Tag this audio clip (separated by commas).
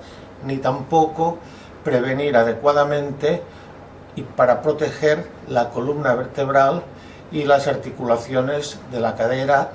Speech, inside a small room